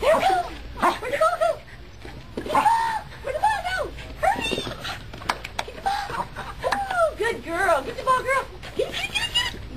A dog barking and whining, along with a female human voice